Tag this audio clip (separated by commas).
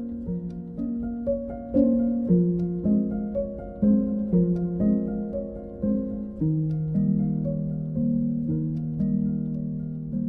Music, Keyboard (musical), Musical instrument, inside a small room, Piano